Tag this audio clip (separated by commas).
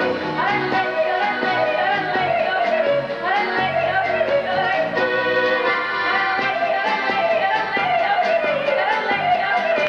yodelling